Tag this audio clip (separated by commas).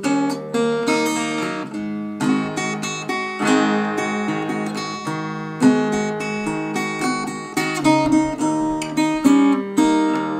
Music, Strum, Acoustic guitar, Musical instrument, Plucked string instrument, Guitar